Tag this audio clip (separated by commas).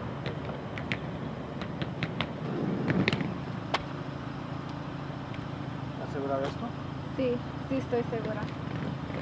Speech